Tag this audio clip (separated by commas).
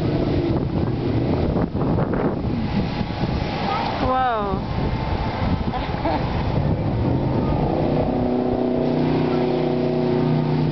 sailing ship, Speech